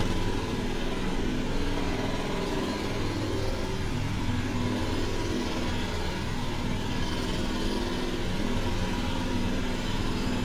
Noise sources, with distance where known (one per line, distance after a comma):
unidentified impact machinery